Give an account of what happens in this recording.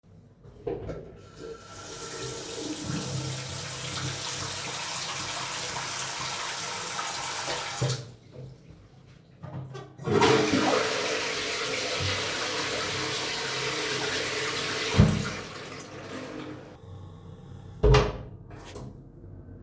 I turned on the tap and washed my hands, flushed the toilet then walked out and closed the door.